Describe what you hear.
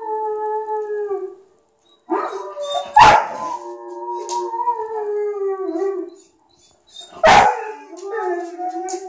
A large dog barks and then howls like a wolf